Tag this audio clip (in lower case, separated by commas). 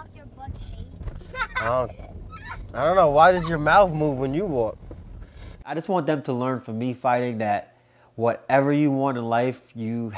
speech, outside, urban or man-made